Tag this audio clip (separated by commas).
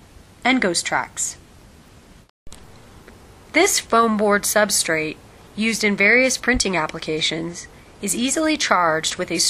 Speech